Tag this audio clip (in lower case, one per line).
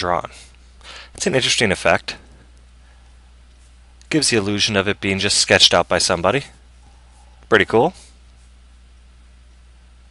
speech